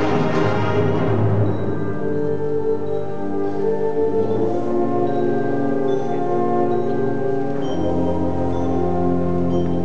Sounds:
orchestra, music

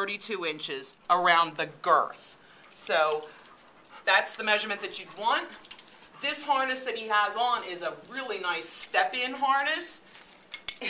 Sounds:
speech, yip

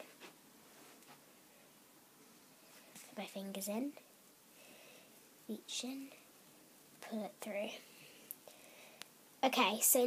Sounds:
speech, inside a small room

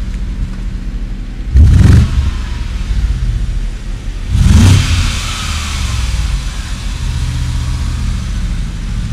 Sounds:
vehicle, car

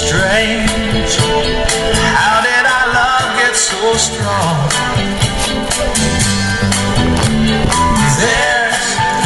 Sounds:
music

